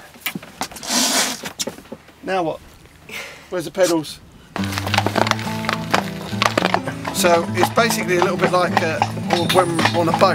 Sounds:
Horse, Speech, Music, Clip-clop, Animal

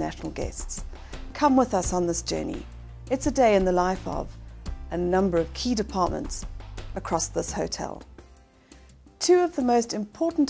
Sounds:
Speech, Music

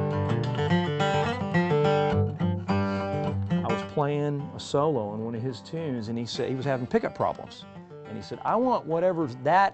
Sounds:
Guitar, Musical instrument, Plucked string instrument, Music, Speech

